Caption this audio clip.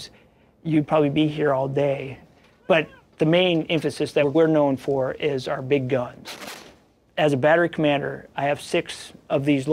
A man speaking and gunshots